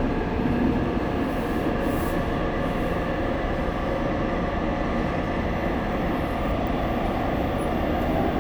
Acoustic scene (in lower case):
subway train